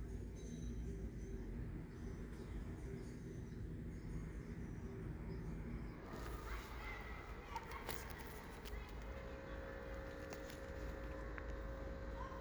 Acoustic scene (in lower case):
residential area